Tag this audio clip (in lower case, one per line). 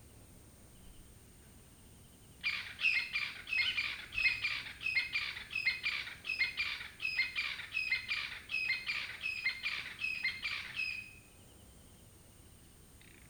wild animals
bird
animal
bird vocalization